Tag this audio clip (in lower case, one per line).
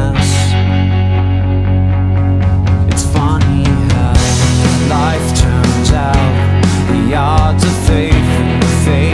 music